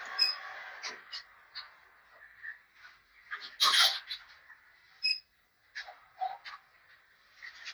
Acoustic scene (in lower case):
elevator